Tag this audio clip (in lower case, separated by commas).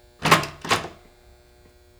door, domestic sounds